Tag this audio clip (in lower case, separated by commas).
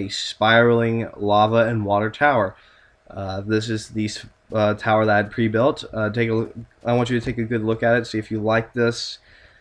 speech